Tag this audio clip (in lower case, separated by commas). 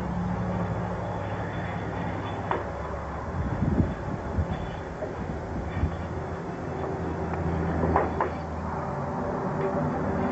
field recording